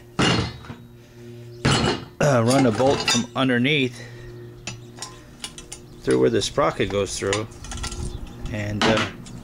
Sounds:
Mechanisms, Gears

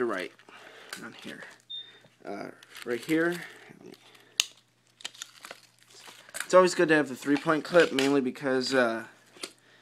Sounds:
Speech

